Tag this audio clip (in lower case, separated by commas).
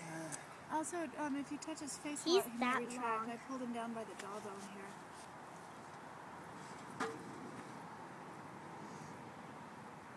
speech